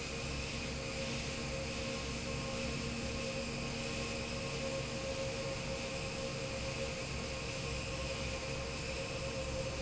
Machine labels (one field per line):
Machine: fan